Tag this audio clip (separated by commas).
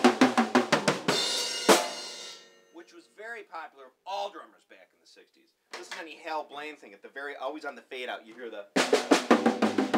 Percussion, Snare drum, Rimshot, Drum kit, Drum, Bass drum